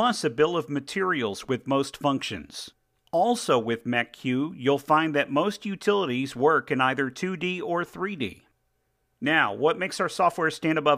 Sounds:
speech

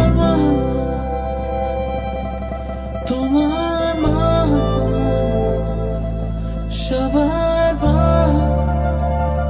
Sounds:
music

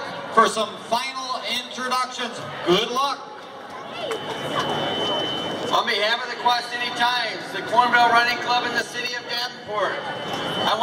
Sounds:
crowd, speech, outside, urban or man-made

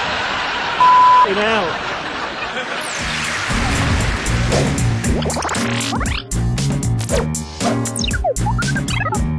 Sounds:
music, outside, rural or natural, speech

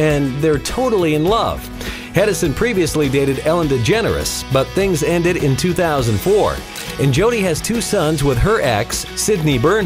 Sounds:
music, speech

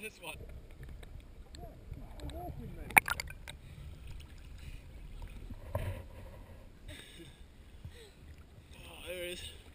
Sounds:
speech

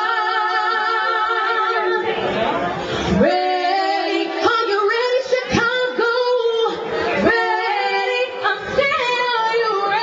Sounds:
yodeling, speech, music

